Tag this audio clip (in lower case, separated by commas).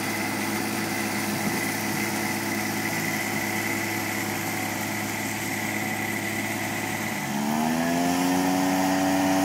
lawn mower, vehicle, light engine (high frequency), lawn mowing